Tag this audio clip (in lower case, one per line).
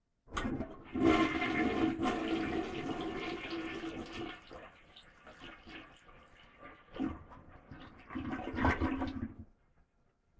toilet flush
home sounds